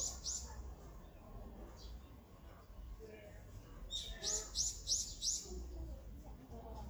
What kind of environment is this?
park